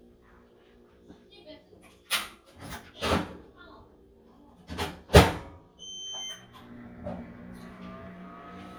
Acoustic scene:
kitchen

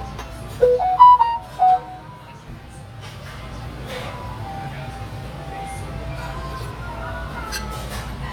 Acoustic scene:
restaurant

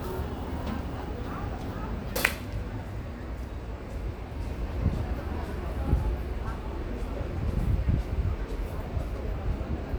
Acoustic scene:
street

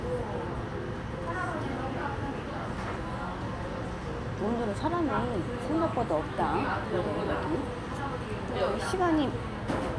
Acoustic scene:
crowded indoor space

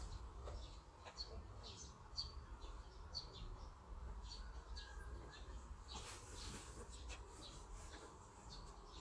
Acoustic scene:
park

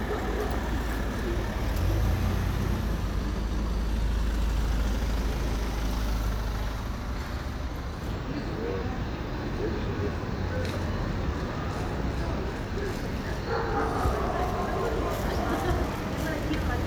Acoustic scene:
residential area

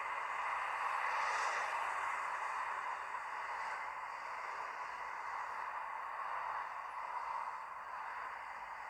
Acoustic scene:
street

